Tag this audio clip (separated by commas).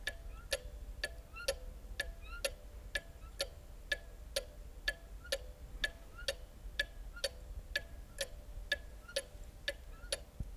Clock, Mechanisms